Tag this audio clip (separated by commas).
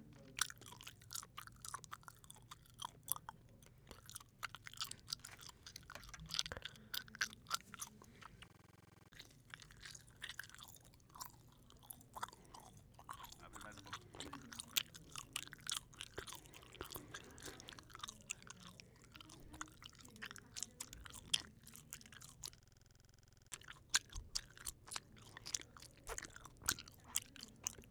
mastication